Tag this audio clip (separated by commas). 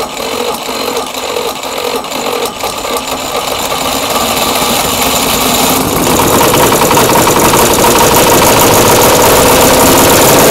Vehicle, Engine starting, Engine, Motorcycle